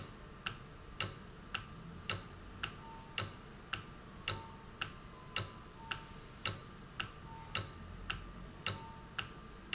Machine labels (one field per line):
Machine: valve